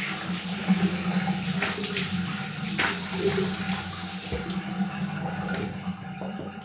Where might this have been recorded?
in a restroom